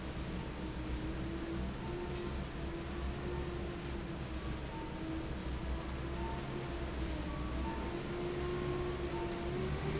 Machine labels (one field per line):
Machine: fan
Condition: normal